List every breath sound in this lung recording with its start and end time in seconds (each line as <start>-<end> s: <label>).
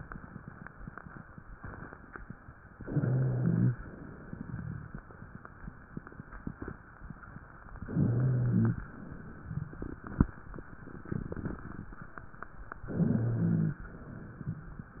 2.81-3.78 s: inhalation
2.81-3.78 s: wheeze
7.84-8.80 s: inhalation
7.84-8.80 s: wheeze
12.88-13.85 s: inhalation
12.88-13.85 s: wheeze